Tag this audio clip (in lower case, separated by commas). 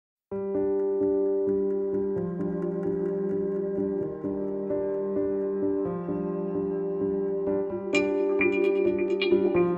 music